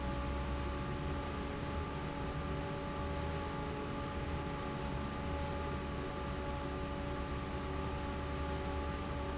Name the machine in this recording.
fan